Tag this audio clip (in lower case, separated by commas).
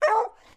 bark, dog, animal, pets